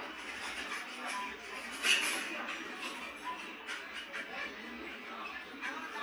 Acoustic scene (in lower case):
restaurant